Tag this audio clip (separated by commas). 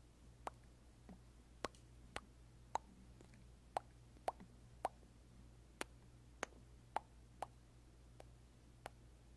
lip smacking